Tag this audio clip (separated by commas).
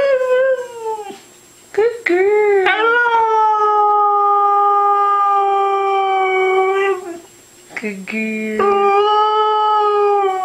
Dog, Howl, Animal, Domestic animals